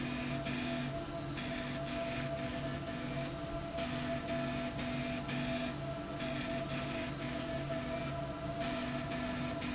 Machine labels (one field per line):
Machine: slide rail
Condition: abnormal